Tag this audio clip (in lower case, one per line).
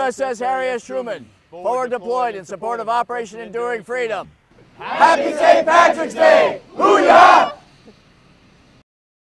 whoop
speech